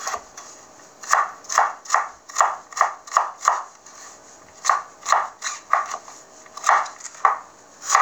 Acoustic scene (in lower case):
kitchen